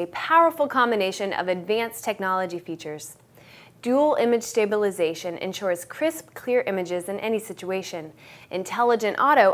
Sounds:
Speech

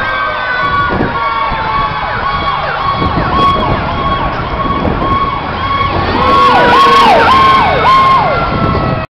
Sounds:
Truck, Vehicle

